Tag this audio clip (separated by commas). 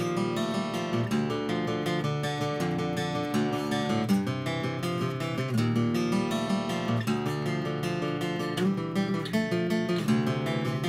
playing acoustic guitar, Musical instrument, Plucked string instrument, Acoustic guitar, Music, Guitar